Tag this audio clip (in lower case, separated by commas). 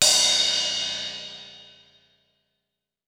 cymbal, musical instrument, crash cymbal, music, percussion